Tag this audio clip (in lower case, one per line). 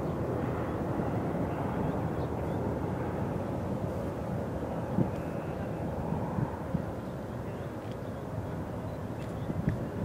airplane
vehicle
aircraft